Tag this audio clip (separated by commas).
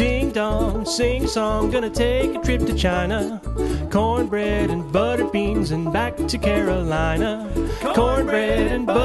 Ukulele, Music